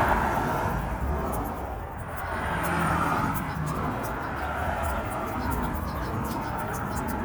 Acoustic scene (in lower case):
street